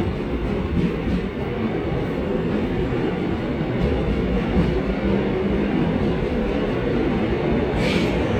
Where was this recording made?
on a subway train